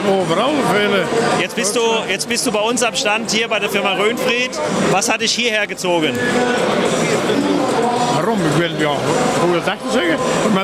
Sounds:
speech
inside a public space
inside a large room or hall

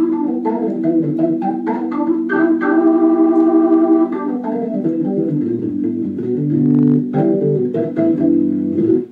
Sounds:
electronic organ
music

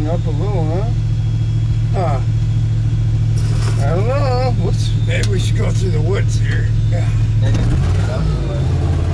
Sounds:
speech
vehicle

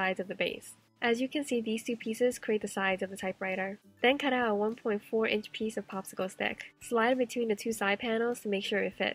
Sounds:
typing on typewriter

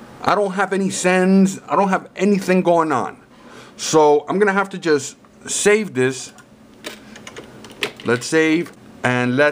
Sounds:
speech

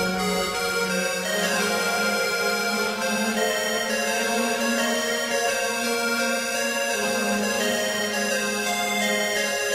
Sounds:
electronic music
music

